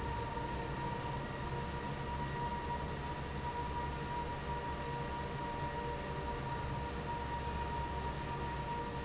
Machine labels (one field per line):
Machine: fan